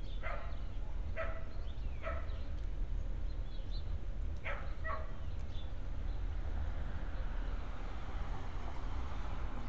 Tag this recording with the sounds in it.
medium-sounding engine, dog barking or whining